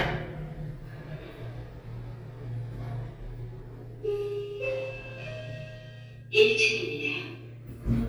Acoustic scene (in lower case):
elevator